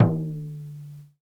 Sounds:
percussion, drum, musical instrument, music

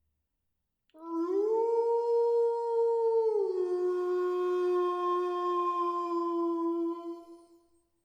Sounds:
animal, pets, dog

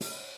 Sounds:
cymbal, music, musical instrument, percussion

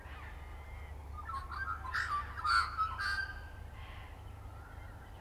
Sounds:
wild animals, animal, bird

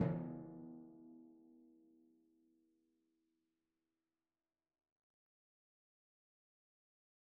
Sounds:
percussion, drum, music, musical instrument

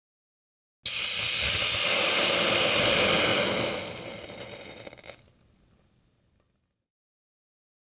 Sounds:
hiss

